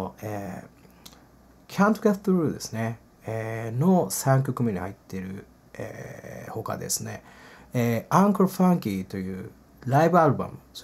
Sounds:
speech

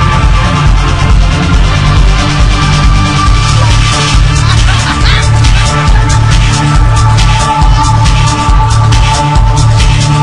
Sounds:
inside a large room or hall
music

